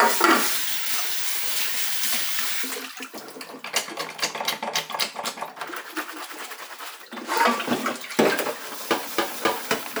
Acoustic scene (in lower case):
kitchen